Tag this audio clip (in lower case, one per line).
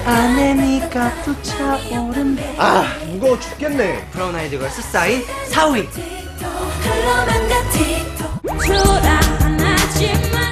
music
speech